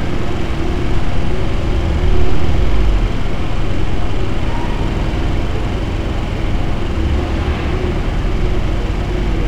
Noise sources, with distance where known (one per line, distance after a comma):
large-sounding engine, near